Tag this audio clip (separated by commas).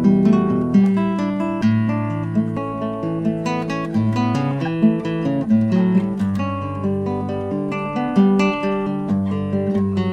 Strum, Music, Musical instrument, Guitar, Plucked string instrument